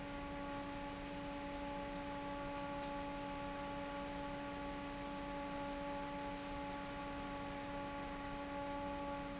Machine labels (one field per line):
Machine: fan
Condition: normal